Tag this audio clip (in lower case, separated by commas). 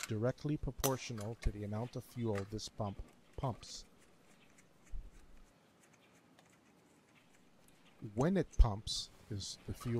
speech